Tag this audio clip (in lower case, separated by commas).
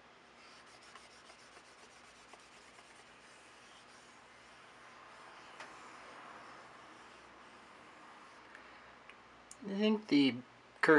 inside a small room, speech